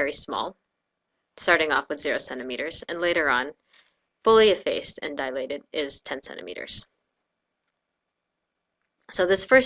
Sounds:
Speech, monologue

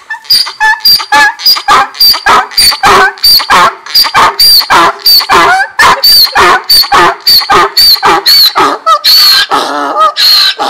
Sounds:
ass braying

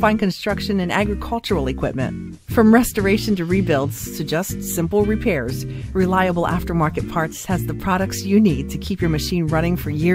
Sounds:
Music, Speech

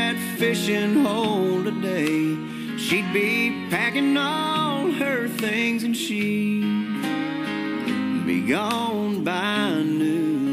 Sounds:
Christian music, Music

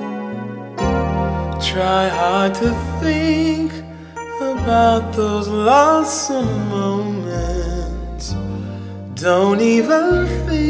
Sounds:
Sad music, Music

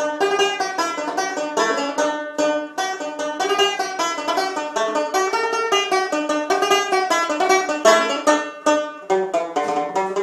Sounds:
playing banjo, Music, Banjo

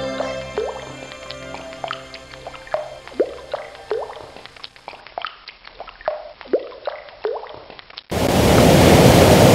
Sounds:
Waterfall, Music

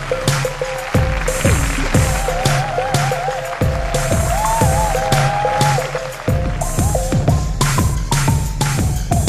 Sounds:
Music

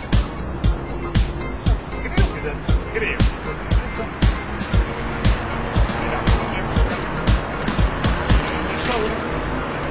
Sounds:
Music, Speech

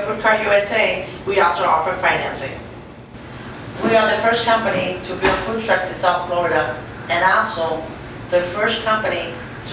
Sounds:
Speech

